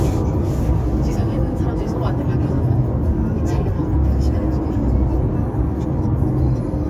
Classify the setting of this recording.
car